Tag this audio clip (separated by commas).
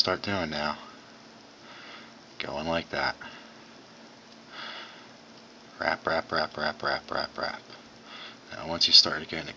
Speech